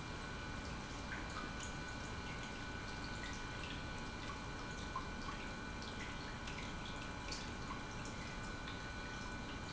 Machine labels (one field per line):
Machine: pump